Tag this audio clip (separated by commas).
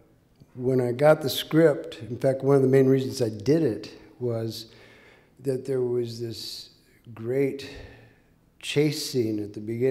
Speech